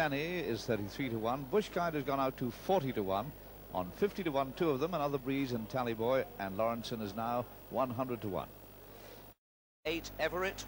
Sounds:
speech

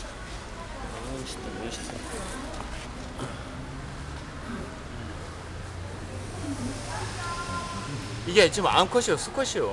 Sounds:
speech

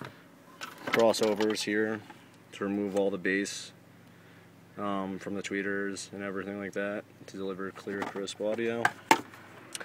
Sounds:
speech

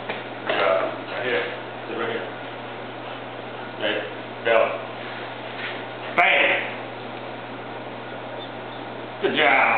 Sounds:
speech

